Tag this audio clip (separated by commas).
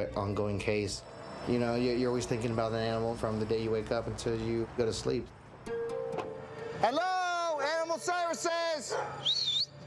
Music, Domestic animals, Speech, Dog, Animal